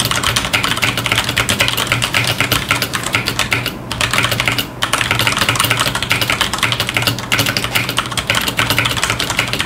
Typing on a computer keyboard